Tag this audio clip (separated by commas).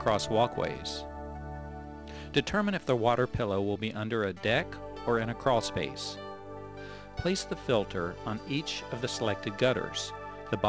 Speech, Music